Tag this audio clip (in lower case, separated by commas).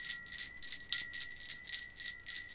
bell